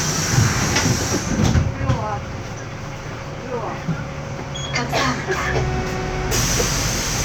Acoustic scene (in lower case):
bus